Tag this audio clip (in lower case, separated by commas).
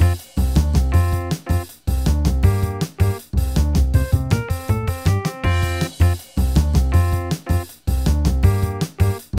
music